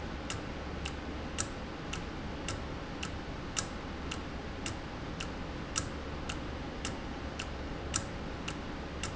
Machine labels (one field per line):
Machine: valve